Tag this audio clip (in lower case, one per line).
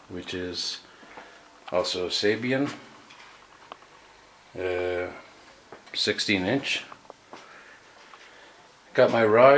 speech